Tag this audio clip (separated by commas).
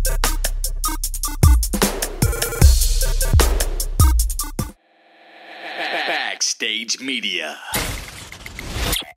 Speech, Music, Drum machine